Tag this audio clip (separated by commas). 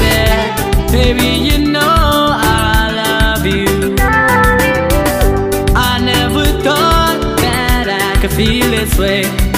Music